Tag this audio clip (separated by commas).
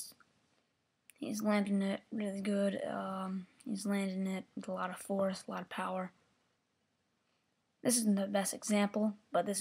Speech